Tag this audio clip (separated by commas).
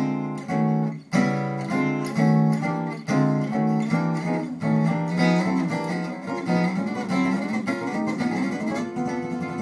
Music, Guitar